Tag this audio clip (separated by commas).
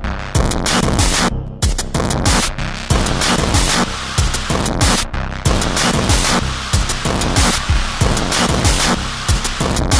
Music